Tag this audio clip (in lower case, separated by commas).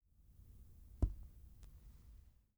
tap